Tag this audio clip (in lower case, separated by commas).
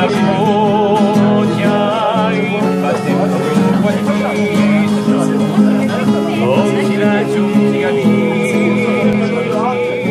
music, speech